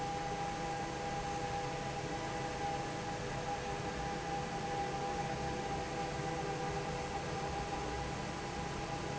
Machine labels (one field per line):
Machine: fan